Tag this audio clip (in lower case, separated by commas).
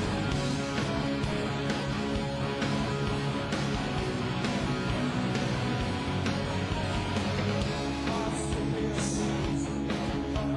music